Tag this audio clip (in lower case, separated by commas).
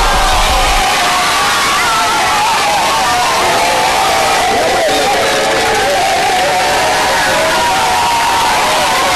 crowd, cheering, children shouting